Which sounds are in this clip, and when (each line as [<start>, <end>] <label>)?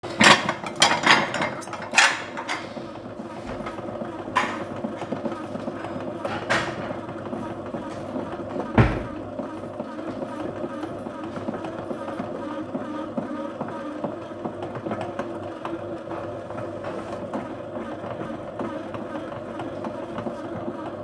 [0.00, 7.30] cutlery and dishes
[8.67, 9.29] door